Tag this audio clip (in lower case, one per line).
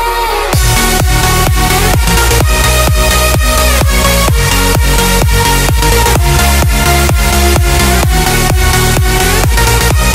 house music
electronica
music
electronic dance music
trance music
electronic music
dubstep
techno